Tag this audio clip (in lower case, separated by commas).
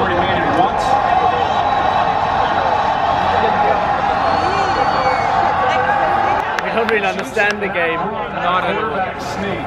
people cheering